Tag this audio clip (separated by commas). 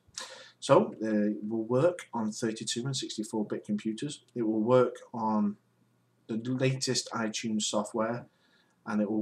Speech